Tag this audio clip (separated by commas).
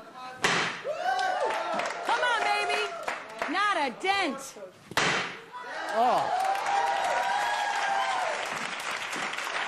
Speech, Slam